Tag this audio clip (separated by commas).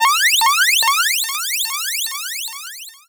Alarm